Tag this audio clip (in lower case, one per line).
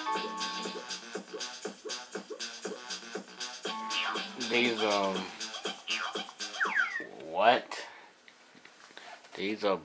speech
music
scratching (performance technique)